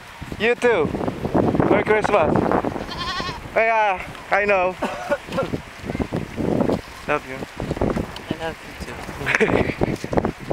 A man is speaking and goats are bleating